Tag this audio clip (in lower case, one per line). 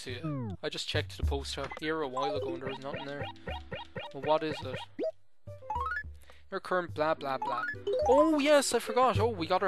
music
speech